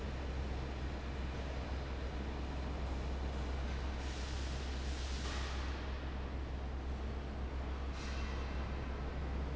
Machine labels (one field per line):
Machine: fan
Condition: abnormal